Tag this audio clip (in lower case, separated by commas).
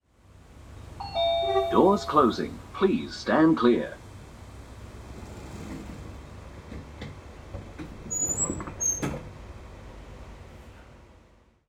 door, sliding door, train, vehicle, rail transport, domestic sounds